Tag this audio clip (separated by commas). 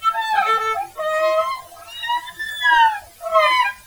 Musical instrument, Bowed string instrument, Music